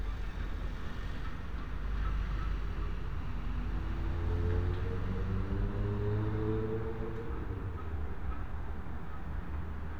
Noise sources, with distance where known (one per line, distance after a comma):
engine of unclear size, far